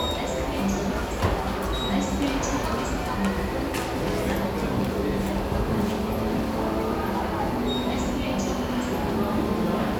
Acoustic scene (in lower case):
subway station